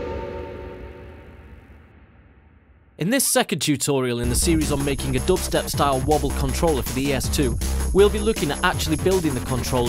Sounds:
speech, music

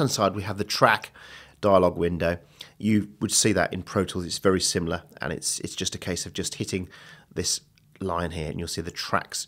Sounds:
speech

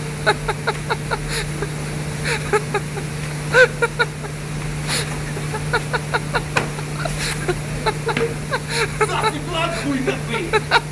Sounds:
speech

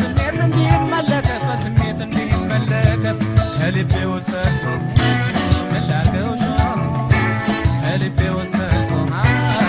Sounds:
music

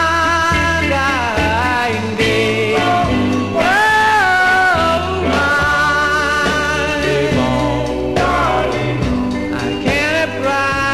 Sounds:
music

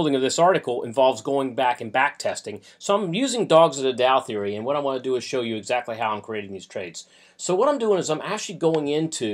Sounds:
speech

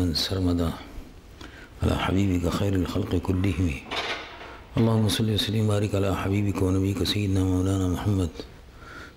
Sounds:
man speaking, speech

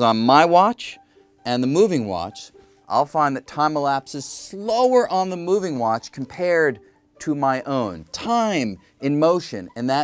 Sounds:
speech

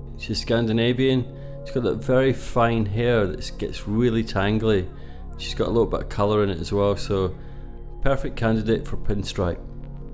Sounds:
music, speech

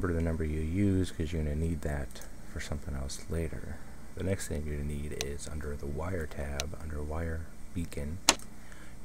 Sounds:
speech

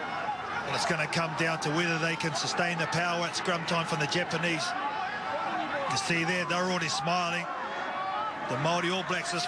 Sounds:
speech

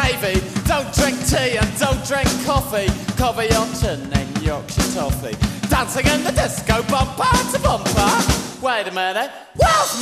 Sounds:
music, reggae

